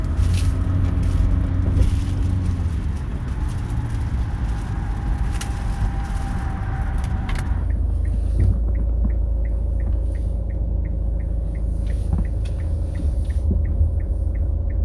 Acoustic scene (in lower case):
car